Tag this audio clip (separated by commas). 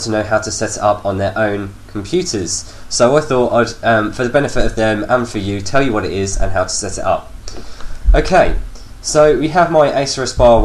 Speech